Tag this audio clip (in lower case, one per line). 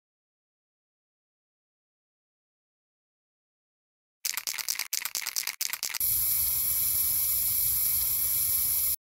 spray